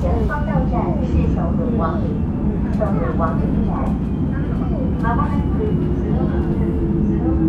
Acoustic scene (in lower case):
subway train